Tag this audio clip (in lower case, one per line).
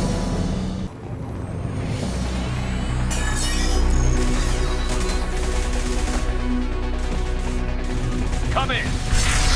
speech
music